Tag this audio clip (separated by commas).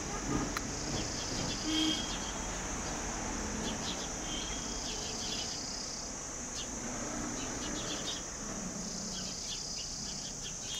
Cricket, Insect